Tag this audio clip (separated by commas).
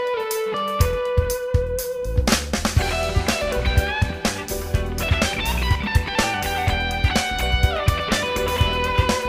Musical instrument, Music, Plucked string instrument, Electric guitar, Guitar